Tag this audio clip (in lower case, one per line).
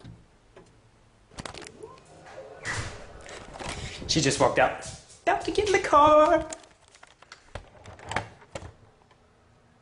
speech